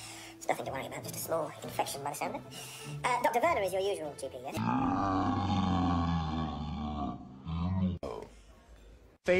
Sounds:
Music, Speech

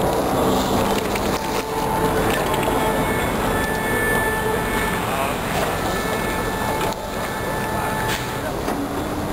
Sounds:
Bus, Motor vehicle (road), Vehicle

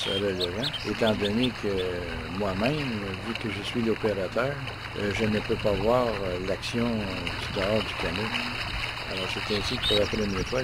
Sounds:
Vehicle, Speech, canoe, Water vehicle

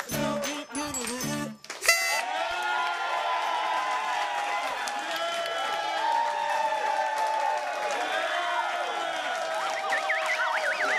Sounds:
Music, Speech

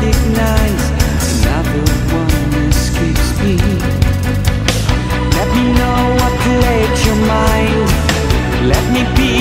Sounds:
Music

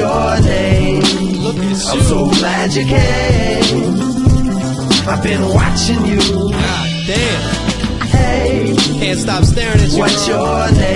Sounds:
Music

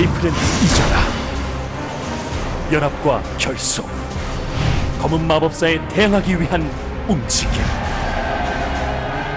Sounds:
Music, Speech

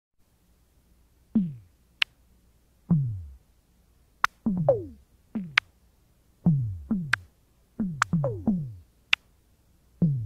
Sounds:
Music

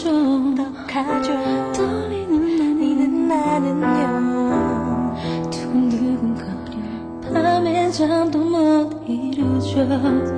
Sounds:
Music, Female singing

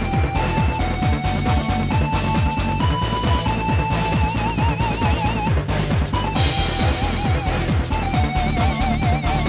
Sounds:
Music

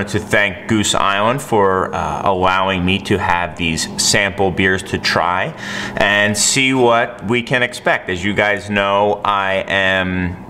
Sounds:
Speech

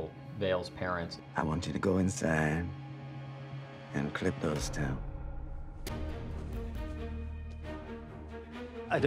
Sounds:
Speech, Music

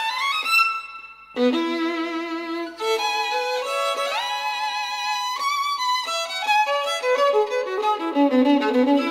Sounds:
Musical instrument, fiddle, Music

